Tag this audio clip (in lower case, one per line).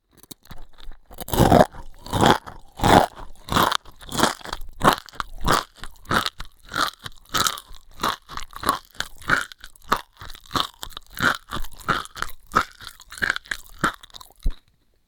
mastication